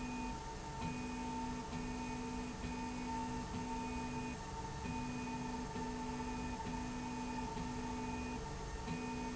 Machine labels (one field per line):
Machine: slide rail